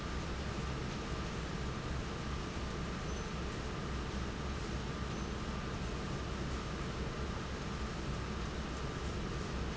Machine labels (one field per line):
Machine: fan